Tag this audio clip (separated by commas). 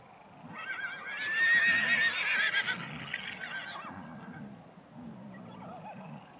Animal, livestock